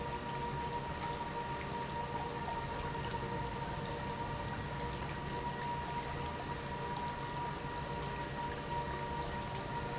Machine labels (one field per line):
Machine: pump